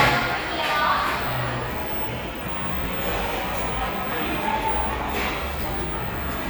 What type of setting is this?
cafe